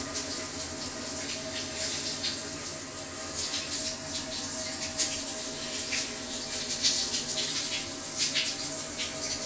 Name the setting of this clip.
restroom